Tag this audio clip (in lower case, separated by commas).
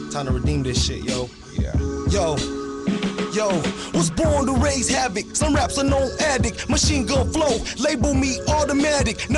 music, musical instrument